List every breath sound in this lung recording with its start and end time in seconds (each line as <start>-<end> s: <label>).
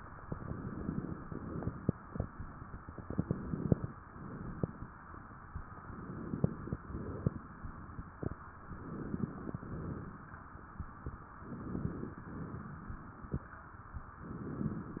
0.23-1.20 s: inhalation
0.23-1.20 s: crackles
1.27-1.91 s: exhalation
1.27-1.91 s: crackles
2.96-3.93 s: inhalation
2.96-3.93 s: crackles
4.06-4.91 s: exhalation
4.06-4.91 s: crackles
5.81-6.78 s: inhalation
5.81-6.78 s: crackles
6.79-7.50 s: exhalation
6.79-7.50 s: crackles
8.63-9.60 s: inhalation
8.63-9.60 s: crackles
9.62-10.33 s: exhalation
9.62-10.33 s: crackles
11.37-12.28 s: inhalation
11.37-12.28 s: crackles
12.33-13.27 s: exhalation
12.33-13.27 s: crackles
14.19-15.00 s: inhalation
14.19-15.00 s: crackles